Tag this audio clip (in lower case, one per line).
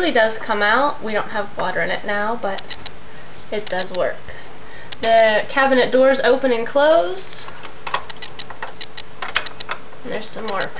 speech